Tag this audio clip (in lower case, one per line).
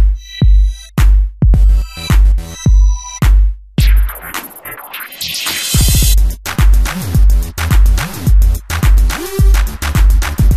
music